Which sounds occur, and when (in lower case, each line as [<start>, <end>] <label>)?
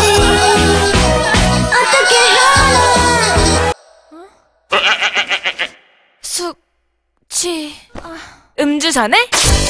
[0.00, 3.72] music
[0.00, 9.65] background noise
[1.69, 3.45] female singing
[4.09, 4.30] woman speaking
[4.69, 5.71] bleat
[6.25, 6.54] woman speaking
[7.29, 7.71] woman speaking
[8.57, 9.32] woman speaking
[9.30, 9.65] music